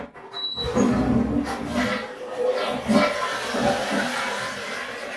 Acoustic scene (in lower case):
restroom